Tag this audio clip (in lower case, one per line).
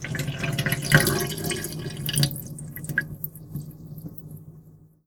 domestic sounds
sink (filling or washing)